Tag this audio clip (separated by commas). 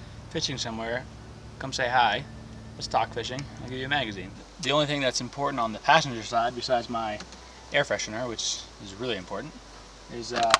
Speech